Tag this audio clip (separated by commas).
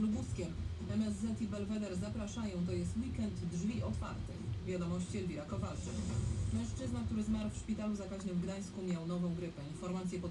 Speech, Radio